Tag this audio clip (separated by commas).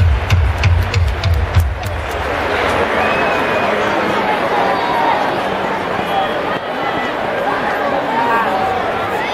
Speech